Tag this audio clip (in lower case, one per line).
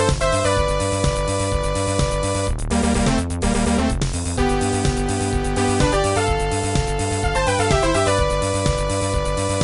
music